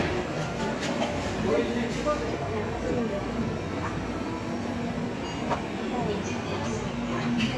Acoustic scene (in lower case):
cafe